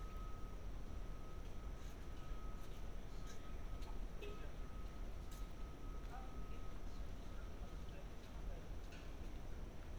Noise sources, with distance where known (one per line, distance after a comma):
background noise